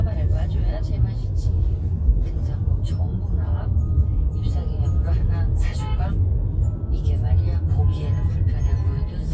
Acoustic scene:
car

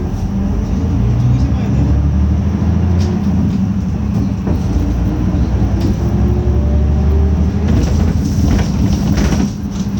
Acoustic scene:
bus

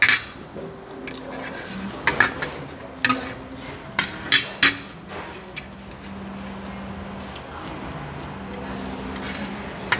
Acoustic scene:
restaurant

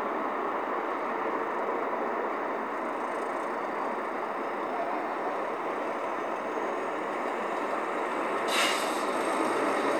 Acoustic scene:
street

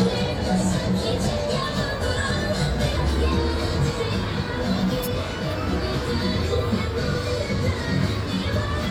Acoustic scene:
street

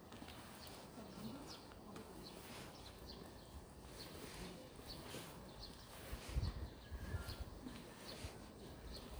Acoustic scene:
park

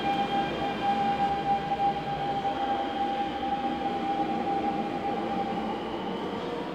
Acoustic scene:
subway station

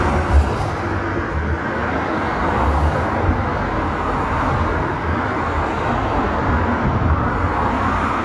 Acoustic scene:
street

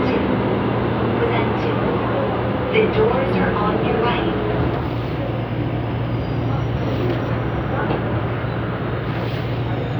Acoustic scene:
subway train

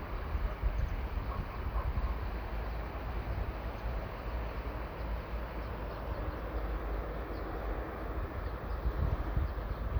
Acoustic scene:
park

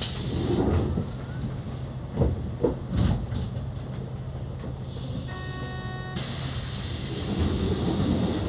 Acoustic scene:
bus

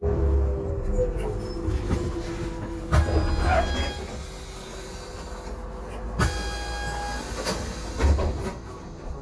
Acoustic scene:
bus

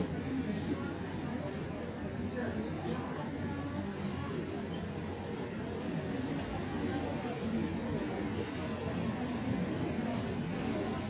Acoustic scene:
subway station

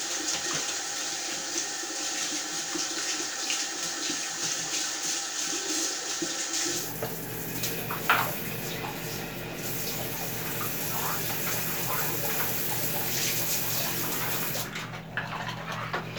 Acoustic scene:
restroom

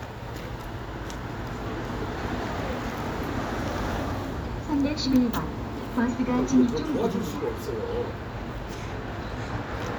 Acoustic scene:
street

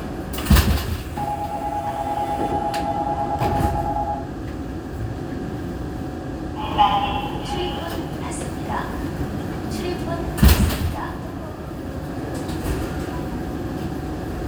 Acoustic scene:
subway train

